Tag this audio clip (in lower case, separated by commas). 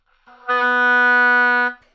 musical instrument, wind instrument, music